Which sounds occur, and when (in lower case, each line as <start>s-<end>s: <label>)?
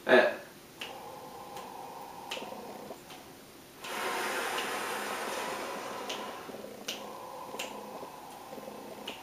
0.0s-0.4s: human voice
0.0s-9.2s: background noise
0.7s-2.9s: breathing
0.7s-0.9s: tick
1.5s-1.6s: tick
2.3s-2.4s: tick
3.1s-3.2s: tick
3.8s-3.8s: tick
3.8s-6.5s: breathing
4.5s-4.7s: tick
5.3s-5.4s: tick
6.0s-6.1s: tick
6.8s-9.2s: breathing
6.9s-7.0s: tick
7.5s-7.7s: tick
8.3s-8.4s: tick
9.0s-9.1s: tick